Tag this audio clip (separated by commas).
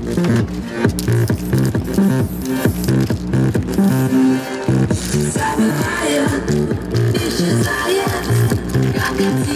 Spray, Music